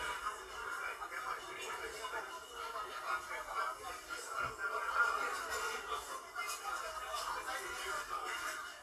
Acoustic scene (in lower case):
crowded indoor space